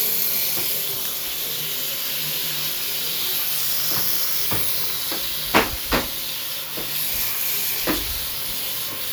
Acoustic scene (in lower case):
restroom